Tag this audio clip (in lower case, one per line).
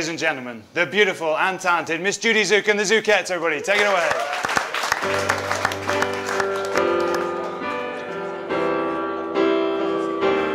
music
speech